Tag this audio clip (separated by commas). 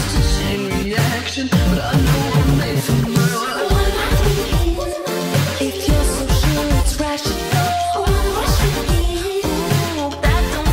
Music